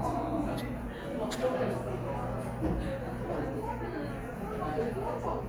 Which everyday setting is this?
cafe